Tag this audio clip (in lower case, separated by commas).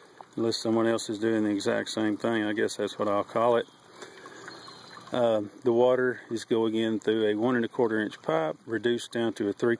speech